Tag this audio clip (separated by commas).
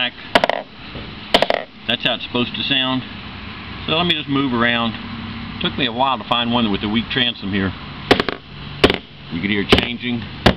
Speech